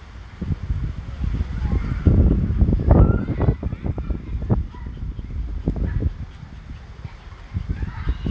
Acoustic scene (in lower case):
residential area